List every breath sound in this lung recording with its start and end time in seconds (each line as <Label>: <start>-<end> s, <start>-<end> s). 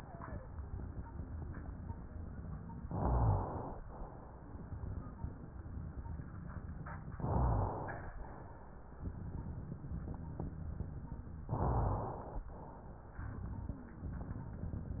Inhalation: 2.85-3.81 s, 7.16-8.12 s, 11.49-12.44 s
Wheeze: 0.00-0.34 s